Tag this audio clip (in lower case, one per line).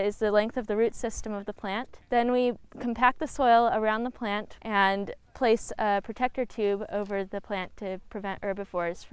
speech